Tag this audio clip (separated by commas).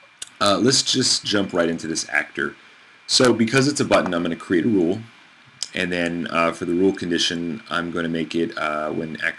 Speech